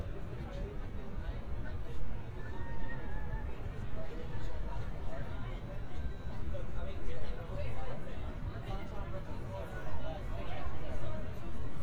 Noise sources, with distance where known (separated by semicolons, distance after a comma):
person or small group talking, near